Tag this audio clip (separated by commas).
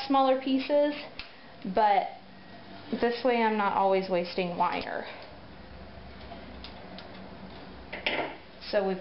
inside a large room or hall, Speech